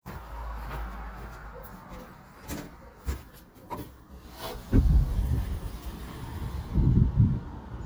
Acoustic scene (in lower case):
residential area